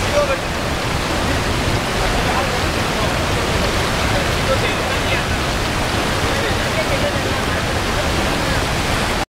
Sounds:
Speech, Stream, waterfall burbling, Gurgling, Waterfall

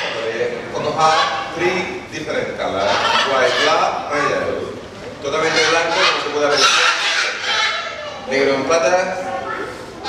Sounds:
Bird

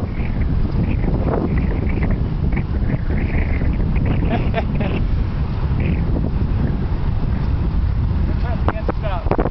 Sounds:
Speech

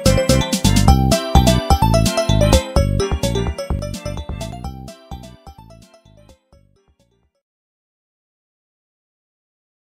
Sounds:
Music

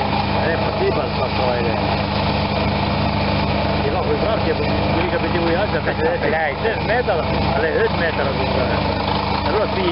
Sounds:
Vehicle, Engine, Idling, Medium engine (mid frequency), Speech

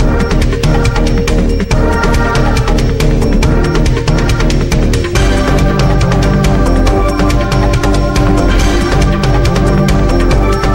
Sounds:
Music, Soundtrack music

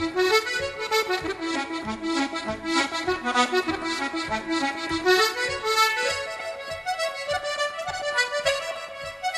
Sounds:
Musical instrument, Music

